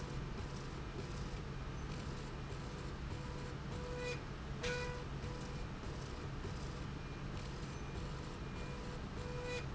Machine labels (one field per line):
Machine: slide rail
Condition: normal